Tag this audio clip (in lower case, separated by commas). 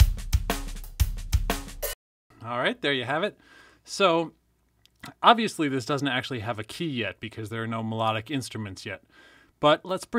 speech, music